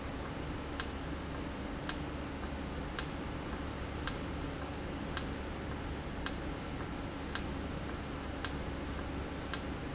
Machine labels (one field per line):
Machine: valve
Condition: normal